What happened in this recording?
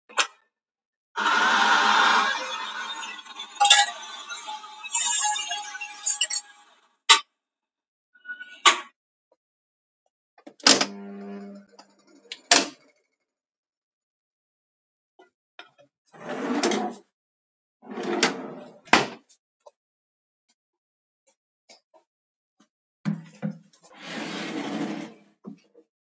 started coffee machine. opened and closed drawer. closed the sliding door.